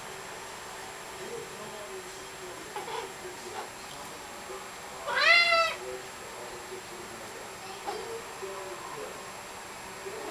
A cat meows and people are talking